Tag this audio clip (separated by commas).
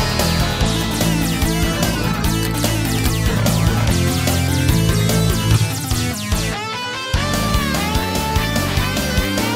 Independent music, Music